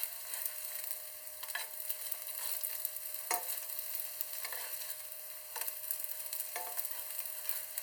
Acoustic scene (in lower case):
kitchen